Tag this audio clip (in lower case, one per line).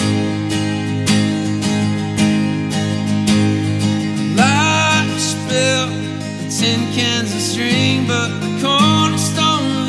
acoustic guitar
strum
guitar
plucked string instrument
music
musical instrument